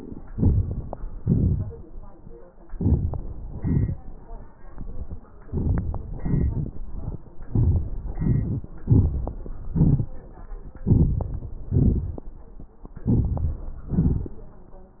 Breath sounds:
Inhalation: 0.23-1.04 s, 2.64-3.49 s, 5.42-6.06 s, 7.45-8.04 s, 8.84-9.70 s, 10.72-11.68 s, 13.00-13.88 s
Exhalation: 1.05-2.52 s, 3.52-5.32 s, 6.07-7.43 s, 8.05-8.84 s, 9.72-10.71 s, 11.70-12.97 s, 13.90-14.90 s
Crackles: 0.23-1.04 s, 1.05-2.52 s, 2.64-3.49 s, 3.52-5.31 s, 5.42-6.06 s, 6.07-7.43 s, 7.46-8.05 s, 8.07-8.81 s, 10.72-11.68 s, 11.70-12.97 s, 13.00-13.88 s

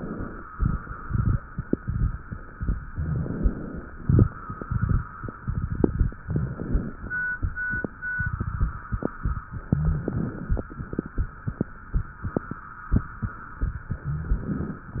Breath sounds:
Inhalation: 2.92-3.83 s, 6.26-6.98 s, 9.73-10.65 s, 13.98-14.90 s
Rhonchi: 2.92-3.30 s, 6.26-6.64 s, 9.77-10.15 s, 14.06-14.44 s

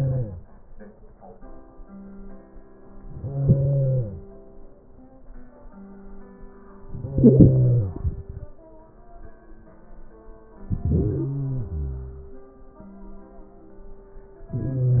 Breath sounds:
Inhalation: 3.05-4.31 s, 6.75-8.51 s, 10.57-12.33 s

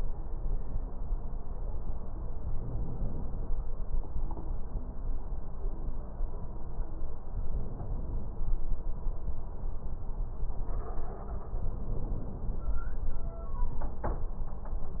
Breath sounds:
Inhalation: 2.48-3.58 s, 7.31-8.41 s, 11.55-12.65 s

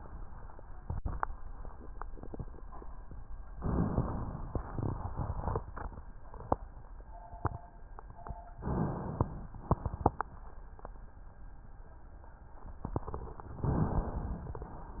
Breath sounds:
Inhalation: 3.61-4.59 s, 8.58-9.56 s, 13.70-14.69 s

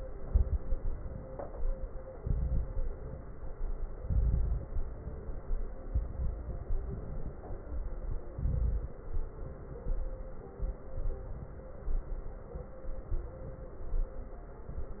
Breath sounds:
Inhalation: 0.23-0.93 s, 2.20-2.90 s, 3.97-4.67 s, 5.95-6.65 s, 8.32-9.03 s
Exhalation: 6.65-7.35 s
Crackles: 0.23-0.93 s, 2.20-2.90 s, 3.97-4.67 s, 5.95-6.65 s, 8.32-9.03 s

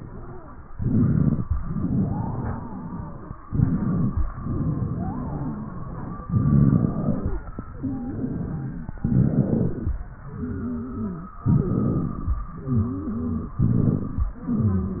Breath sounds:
Inhalation: 0.68-1.45 s, 3.47-4.29 s, 6.27-7.41 s, 9.01-9.98 s, 11.49-12.46 s, 13.64-14.32 s
Exhalation: 1.52-3.36 s, 4.34-6.22 s, 7.70-8.98 s, 10.10-11.38 s, 12.43-13.62 s, 14.40-15.00 s
Wheeze: 1.52-3.36 s, 4.34-6.22 s, 7.70-8.98 s, 9.01-9.98 s, 10.10-11.38 s, 12.43-13.62 s, 14.40-15.00 s
Crackles: 6.27-7.41 s, 11.49-12.46 s, 13.64-14.32 s

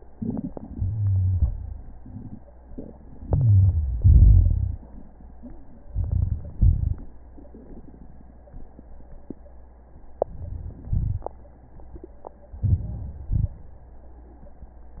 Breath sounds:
Inhalation: 0.00-0.73 s, 3.23-3.99 s, 5.90-6.58 s, 10.28-10.89 s, 12.64-13.23 s
Exhalation: 0.74-1.77 s, 3.99-4.75 s, 6.57-7.11 s, 10.91-11.32 s, 13.31-13.60 s
Crackles: 0.00-0.73 s, 3.23-3.99 s, 3.99-4.75 s, 5.93-6.54 s, 6.57-7.11 s, 10.28-10.89 s, 10.91-11.32 s, 12.64-13.23 s, 13.31-13.60 s

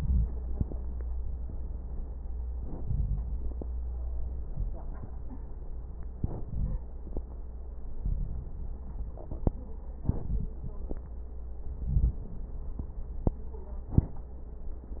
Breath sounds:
Inhalation: 0.00-0.97 s, 2.60-4.14 s, 6.08-7.90 s, 9.95-11.76 s, 13.69-15.00 s
Exhalation: 0.99-2.57 s, 4.17-6.05 s, 7.91-9.98 s, 11.79-13.68 s
Crackles: 0.00-0.97 s, 0.99-2.57 s, 2.60-4.14 s, 4.17-6.05 s, 6.08-7.90 s, 7.91-9.98 s, 9.99-11.76 s, 11.79-13.68 s, 13.69-15.00 s

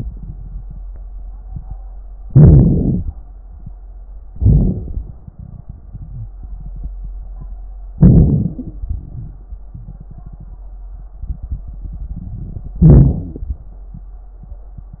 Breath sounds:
Inhalation: 2.25-3.11 s, 4.33-5.14 s, 7.99-8.86 s, 12.80-13.63 s
Exhalation: 8.90-9.55 s
Wheeze: 5.94-6.35 s, 8.55-8.86 s, 13.12-13.54 s
Crackles: 4.33-5.14 s, 7.99-8.86 s

